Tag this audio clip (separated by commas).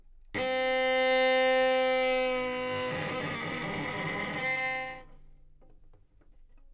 Bowed string instrument, Musical instrument, Music